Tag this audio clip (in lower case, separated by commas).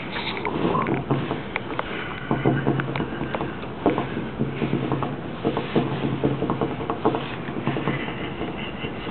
speech